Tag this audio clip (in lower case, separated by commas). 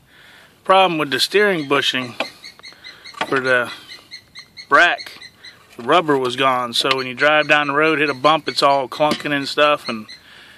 speech, outside, rural or natural